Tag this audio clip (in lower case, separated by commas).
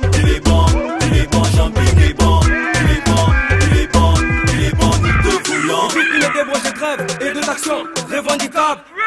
music